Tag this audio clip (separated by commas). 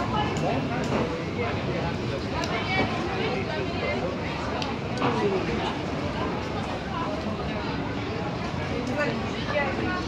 Speech